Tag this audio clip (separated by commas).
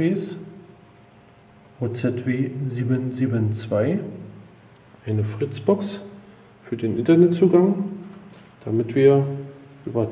Speech